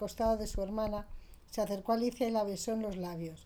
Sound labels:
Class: speech